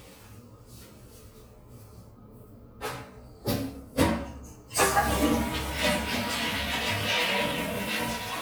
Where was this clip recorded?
in a restroom